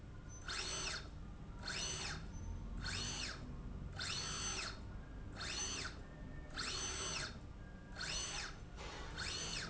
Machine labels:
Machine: slide rail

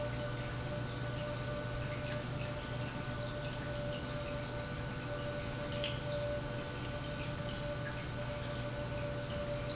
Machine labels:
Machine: pump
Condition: normal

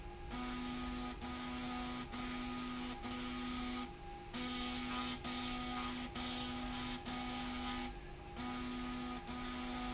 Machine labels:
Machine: slide rail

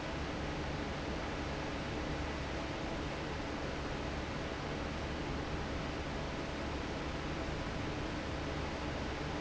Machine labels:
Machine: fan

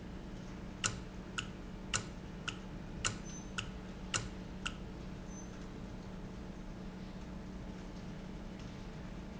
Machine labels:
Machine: valve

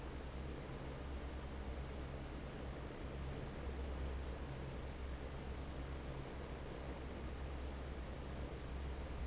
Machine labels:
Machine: fan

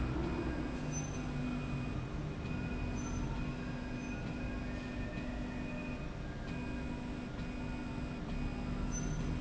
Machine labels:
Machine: slide rail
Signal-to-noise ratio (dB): -6 dB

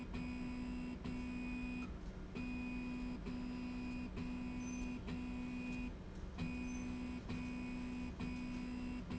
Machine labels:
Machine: slide rail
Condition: normal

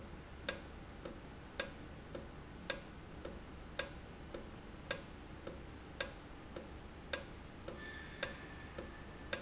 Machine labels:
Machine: valve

